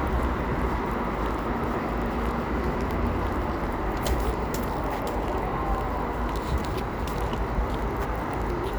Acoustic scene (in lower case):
residential area